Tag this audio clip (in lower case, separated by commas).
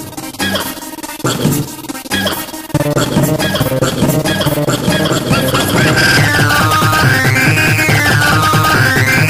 techno, music, electronic music